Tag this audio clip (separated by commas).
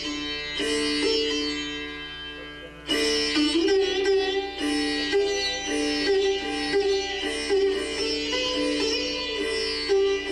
Music, Plucked string instrument, Classical music, Musical instrument, Sitar, Carnatic music